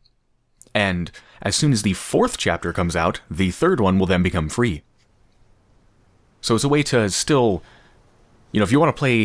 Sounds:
Speech

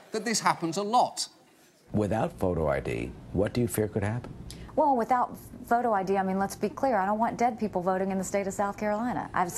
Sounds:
Female speech

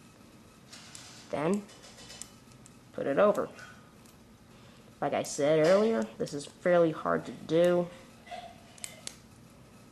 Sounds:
Speech

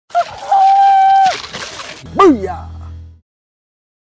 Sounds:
Speech

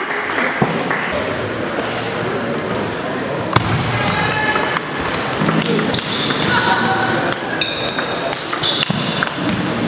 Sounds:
playing table tennis

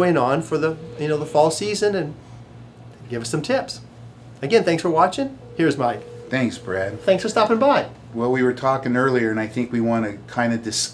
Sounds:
Speech

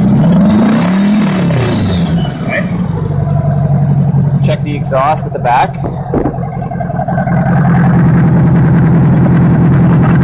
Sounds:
revving, Vehicle, Speech

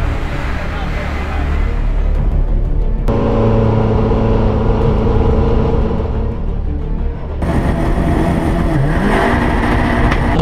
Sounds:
Music, Motor vehicle (road), Car, Vehicle

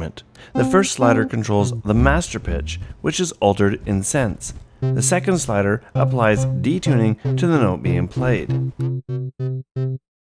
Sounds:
Synthesizer, Speech, Music

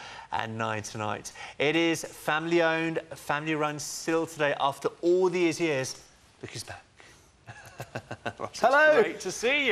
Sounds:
Speech

